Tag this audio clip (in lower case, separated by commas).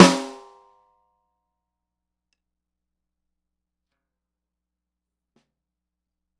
music, drum, percussion, snare drum, musical instrument